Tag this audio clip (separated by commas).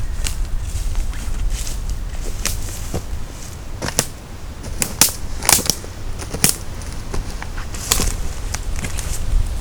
footsteps